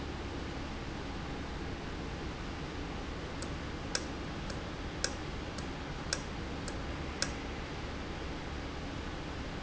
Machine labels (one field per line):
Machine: valve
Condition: normal